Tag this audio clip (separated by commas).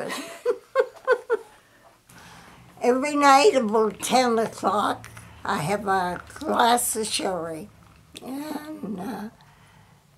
Speech